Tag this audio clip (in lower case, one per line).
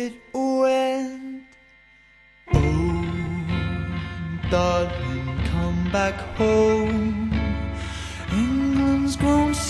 music